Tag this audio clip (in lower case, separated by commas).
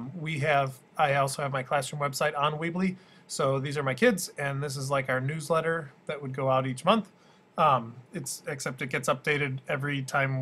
speech